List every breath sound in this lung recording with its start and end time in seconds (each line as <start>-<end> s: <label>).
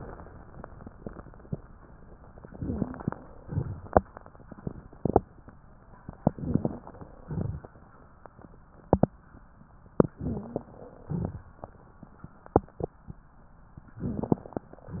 2.45-3.30 s: inhalation
2.50-3.08 s: wheeze
3.42-3.99 s: exhalation
3.42-3.99 s: crackles
6.22-7.08 s: inhalation
6.22-7.08 s: crackles
6.38-6.85 s: wheeze
7.19-7.67 s: exhalation
7.19-7.67 s: crackles
10.13-10.76 s: inhalation
10.19-10.76 s: wheeze
11.04-11.69 s: exhalation
11.04-11.69 s: crackles
14.04-14.72 s: inhalation
14.04-14.72 s: crackles